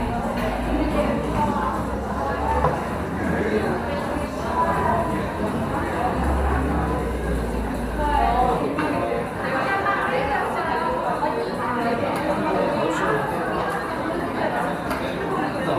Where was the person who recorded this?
in a cafe